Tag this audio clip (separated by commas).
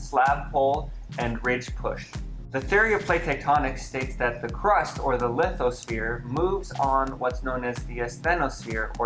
Music, Speech